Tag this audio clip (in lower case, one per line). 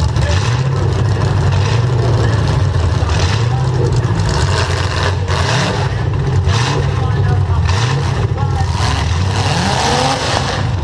speech